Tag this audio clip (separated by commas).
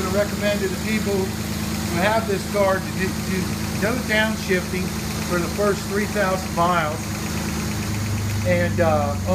Engine, Vehicle, Speech